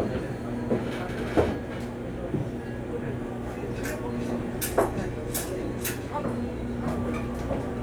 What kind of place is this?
cafe